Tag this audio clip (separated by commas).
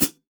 Musical instrument, Cymbal, Music, Percussion, Hi-hat